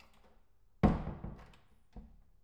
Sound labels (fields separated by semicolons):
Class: door; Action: closing